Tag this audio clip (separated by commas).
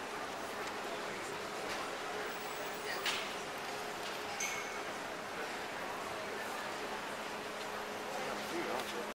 Speech